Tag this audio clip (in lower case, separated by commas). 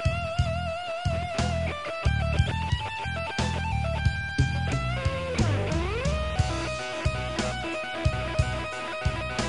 plucked string instrument, music, musical instrument, guitar